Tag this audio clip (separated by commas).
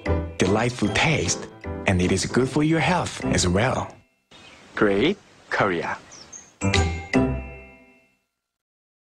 Music, Speech